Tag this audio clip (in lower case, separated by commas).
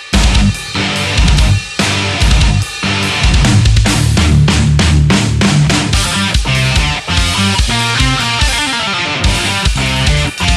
heavy metal, video game music, music